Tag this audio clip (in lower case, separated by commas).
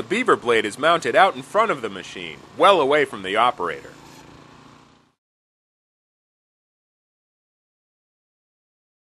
speech